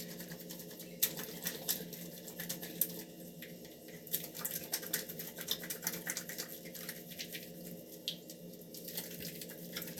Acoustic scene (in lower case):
restroom